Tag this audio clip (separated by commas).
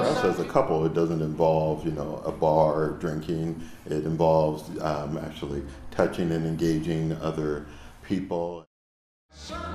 Speech